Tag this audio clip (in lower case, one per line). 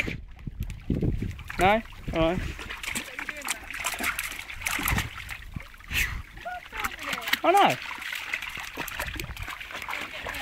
speech